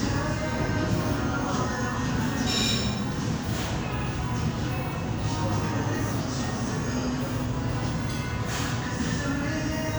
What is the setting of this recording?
cafe